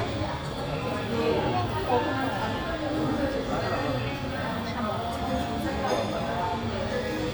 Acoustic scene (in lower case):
cafe